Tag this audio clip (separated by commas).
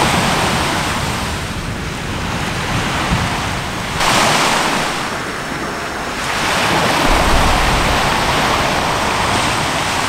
volcano explosion